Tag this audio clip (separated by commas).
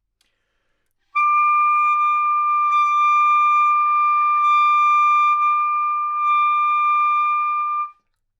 Musical instrument, Music, Wind instrument